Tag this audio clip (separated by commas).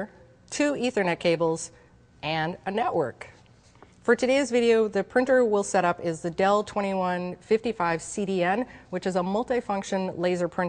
Speech